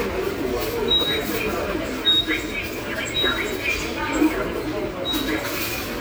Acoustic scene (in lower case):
subway station